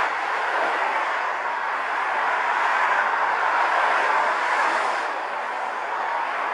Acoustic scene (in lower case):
street